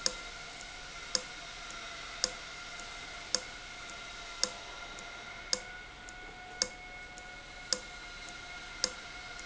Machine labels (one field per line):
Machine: valve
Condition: abnormal